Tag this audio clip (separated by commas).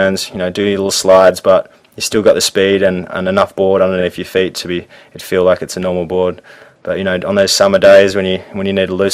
Speech